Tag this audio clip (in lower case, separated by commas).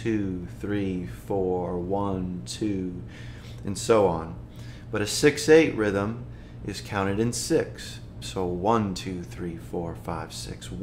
speech